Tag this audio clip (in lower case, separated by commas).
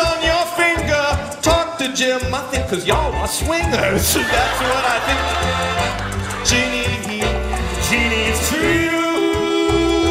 singing, folk music